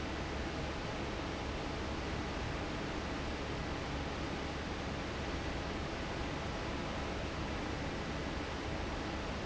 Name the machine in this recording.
fan